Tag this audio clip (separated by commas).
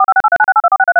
Alarm, Telephone